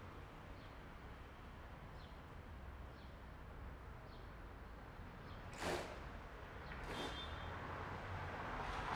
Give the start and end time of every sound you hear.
5.6s-5.8s: motorcycle
5.6s-5.8s: motorcycle engine accelerating
6.8s-7.2s: motorcycle
6.8s-7.2s: motorcycle engine accelerating

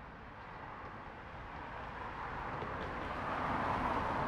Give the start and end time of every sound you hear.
0.8s-4.3s: car
0.8s-4.3s: car wheels rolling

